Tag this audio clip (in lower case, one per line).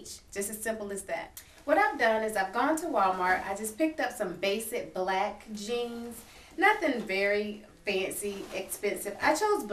speech